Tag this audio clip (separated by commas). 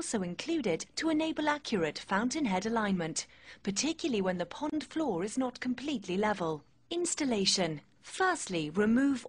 Speech